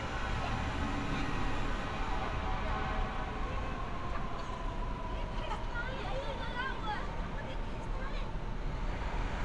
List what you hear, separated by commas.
person or small group talking